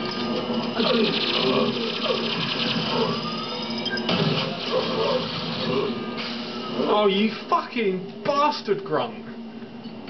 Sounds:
Speech, Music

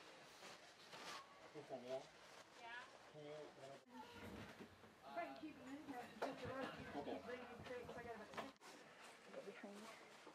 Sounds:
Speech

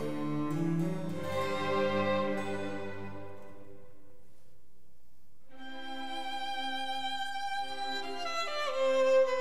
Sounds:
Music, fiddle, Musical instrument

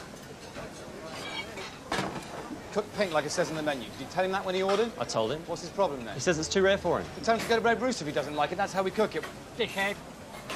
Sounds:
Speech

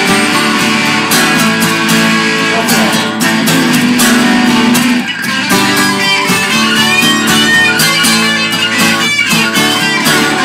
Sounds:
Rock and roll, Music

